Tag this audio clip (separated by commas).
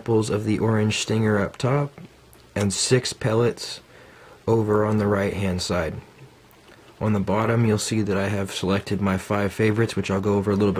Speech